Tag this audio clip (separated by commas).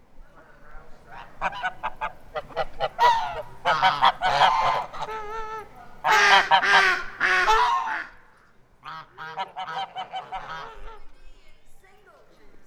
Animal, livestock, Fowl